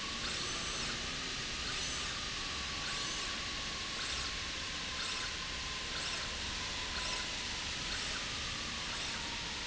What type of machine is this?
slide rail